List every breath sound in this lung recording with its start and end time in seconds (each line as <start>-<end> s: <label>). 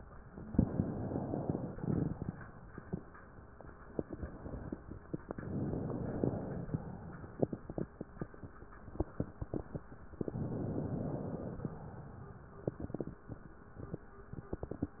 0.51-1.75 s: inhalation
1.75-2.39 s: exhalation
5.24-6.74 s: inhalation
6.74-7.46 s: exhalation
10.19-11.74 s: inhalation
11.74-12.64 s: exhalation